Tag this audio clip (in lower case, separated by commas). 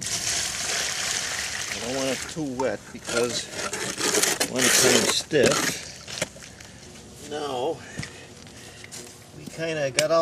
outside, rural or natural, water, speech